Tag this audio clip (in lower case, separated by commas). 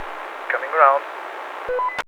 aircraft, speech, male speech, vehicle, human voice